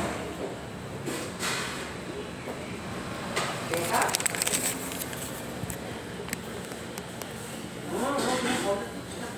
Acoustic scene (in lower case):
restaurant